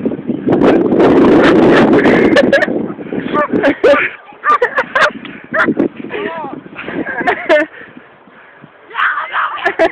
Wind is blowing hard a dog is barking and a few people are laughing and yelling